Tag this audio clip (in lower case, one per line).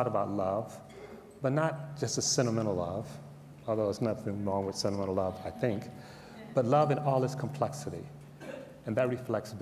speech